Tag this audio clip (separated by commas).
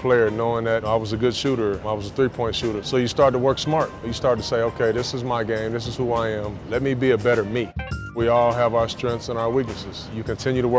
Music, Speech